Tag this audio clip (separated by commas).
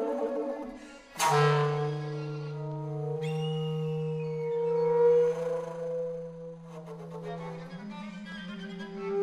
Bowed string instrument, Music